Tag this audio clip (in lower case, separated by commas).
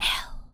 whispering, human voice